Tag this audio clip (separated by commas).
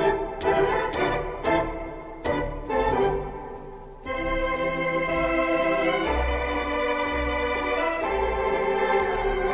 Music